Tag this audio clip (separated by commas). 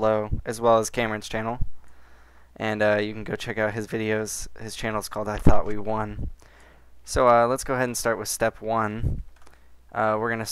Speech